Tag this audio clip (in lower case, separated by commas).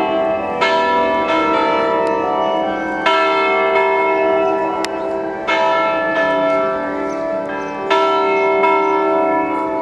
church bell, church bell ringing